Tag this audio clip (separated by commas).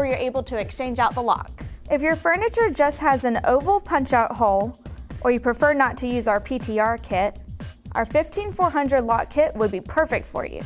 Music, Speech